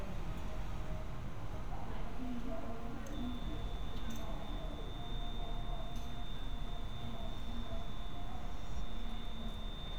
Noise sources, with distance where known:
amplified speech

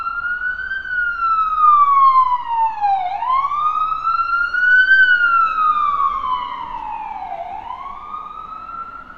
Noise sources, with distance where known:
unidentified alert signal, near

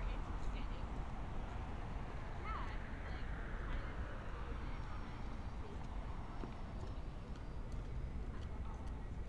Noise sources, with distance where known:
person or small group talking, near

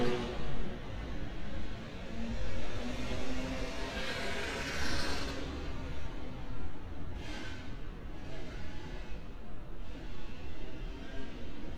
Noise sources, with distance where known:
medium-sounding engine, near

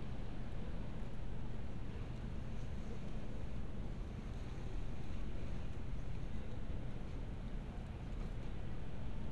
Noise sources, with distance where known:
background noise

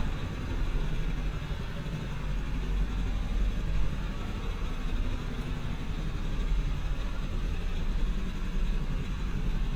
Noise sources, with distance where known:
engine of unclear size, near

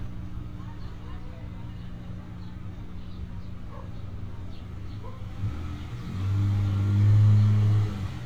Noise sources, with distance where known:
engine of unclear size, near
person or small group talking, far
dog barking or whining, far

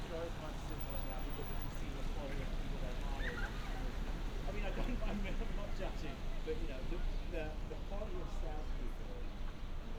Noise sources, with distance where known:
person or small group talking

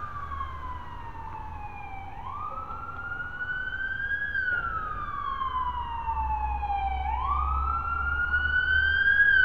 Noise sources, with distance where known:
siren, near

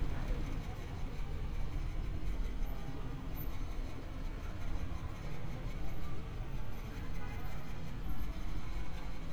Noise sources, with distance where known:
engine of unclear size

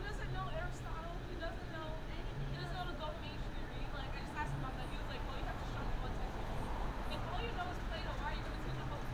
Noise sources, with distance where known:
person or small group talking, near

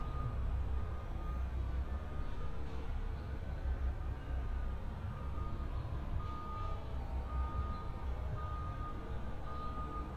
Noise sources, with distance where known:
reverse beeper

